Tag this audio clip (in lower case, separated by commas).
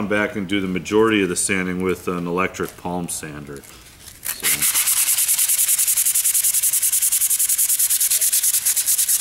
speech